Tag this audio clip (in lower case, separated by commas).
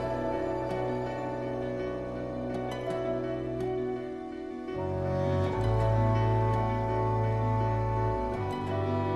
music